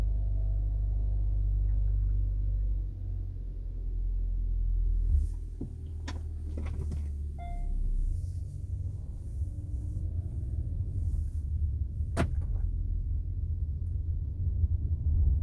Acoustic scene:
car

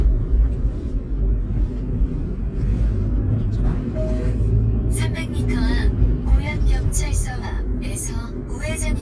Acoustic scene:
car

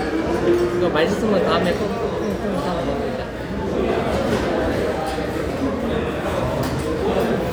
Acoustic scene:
restaurant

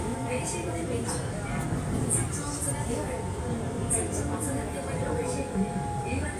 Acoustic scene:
subway train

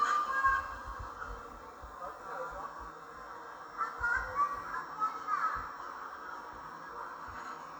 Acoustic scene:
park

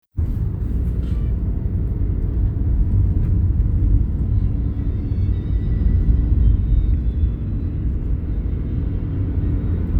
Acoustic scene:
car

